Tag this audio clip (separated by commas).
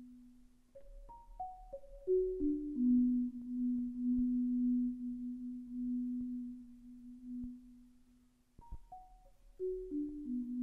Music, Musical instrument, xylophone, Percussion